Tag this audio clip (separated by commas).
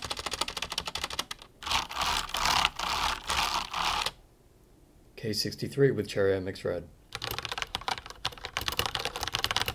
typing on computer keyboard